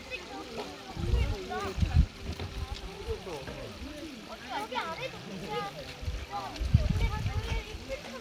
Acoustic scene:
park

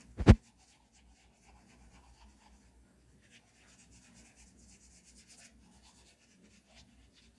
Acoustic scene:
restroom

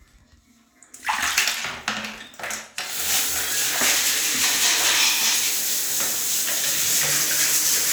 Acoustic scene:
restroom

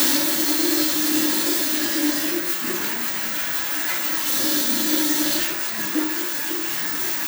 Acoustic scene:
restroom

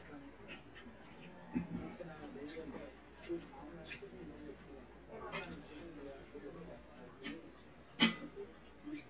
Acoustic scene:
restaurant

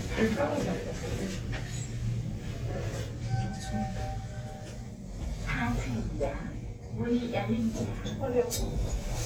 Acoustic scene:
elevator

